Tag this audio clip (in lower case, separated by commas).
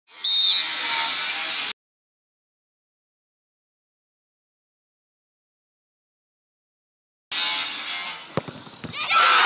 outside, urban or man-made, speech